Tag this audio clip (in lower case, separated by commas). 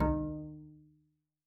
musical instrument, music, bowed string instrument